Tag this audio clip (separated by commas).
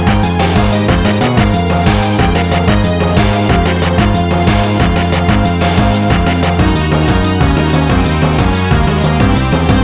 Music